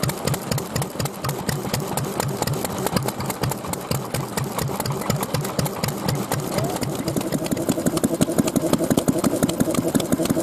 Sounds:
Idling, Engine

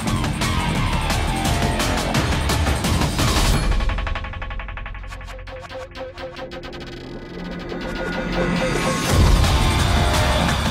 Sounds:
Music

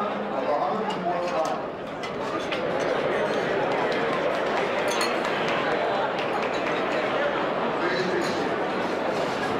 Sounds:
Speech

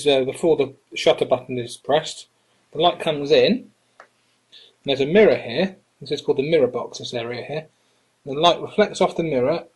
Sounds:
Speech

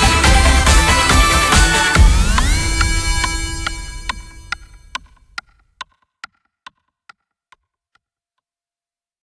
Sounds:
Music, Tick

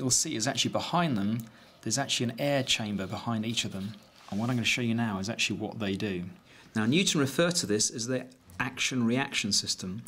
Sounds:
Speech

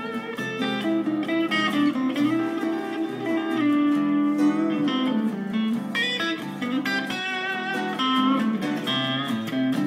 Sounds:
Guitar, Music, Musical instrument, playing electric guitar, Electric guitar

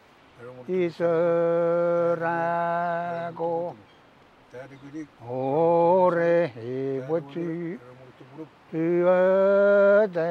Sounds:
Speech

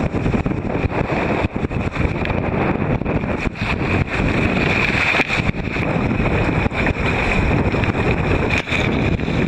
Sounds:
canoe, Boat, Vehicle, kayak rowing

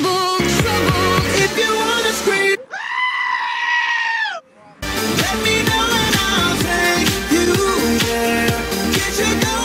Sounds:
Screaming, Music

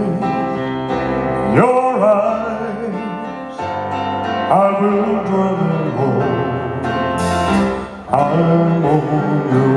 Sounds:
Music

